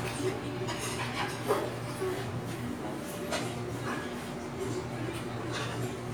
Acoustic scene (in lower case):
restaurant